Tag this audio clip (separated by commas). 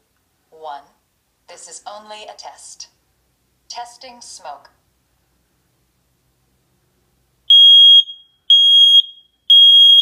Speech, Smoke detector, Fire alarm